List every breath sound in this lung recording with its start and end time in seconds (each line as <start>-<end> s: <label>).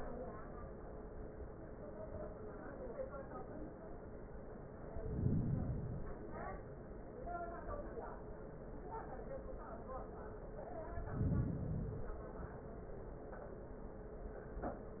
4.85-6.35 s: inhalation
10.83-12.33 s: inhalation